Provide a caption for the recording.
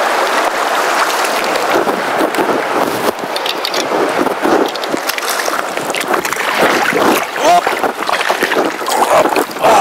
Water running from a stream or waterfall while a man sighs in the background